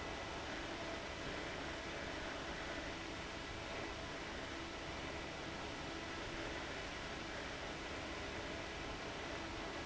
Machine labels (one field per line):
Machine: fan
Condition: abnormal